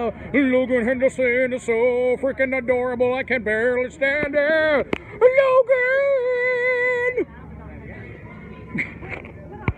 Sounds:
Speech

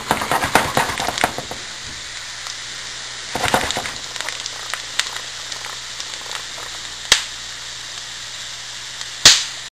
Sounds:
Frying (food)

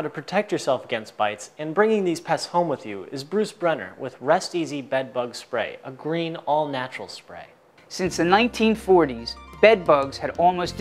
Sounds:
Speech, Music

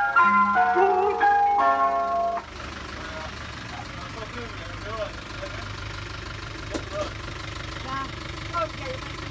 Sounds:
ice cream van

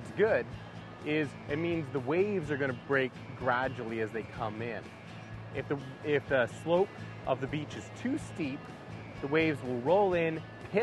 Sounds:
Speech, Music

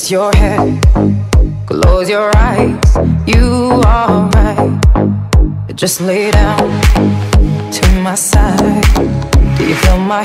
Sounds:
Rhythm and blues, Music

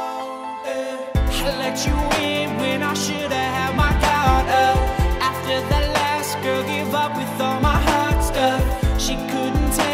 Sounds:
Music

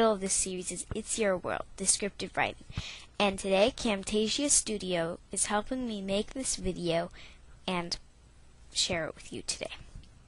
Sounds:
Speech

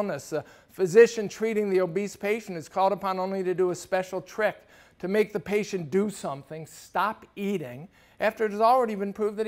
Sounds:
Speech

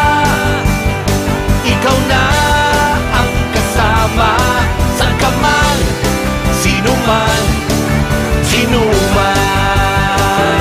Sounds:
Music

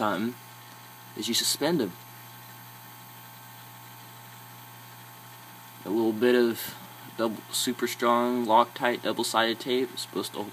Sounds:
Speech

